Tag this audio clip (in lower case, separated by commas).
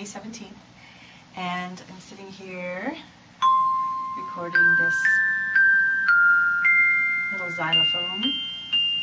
speech, music, musical instrument